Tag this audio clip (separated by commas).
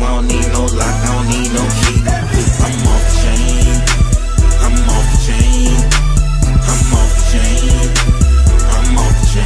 Music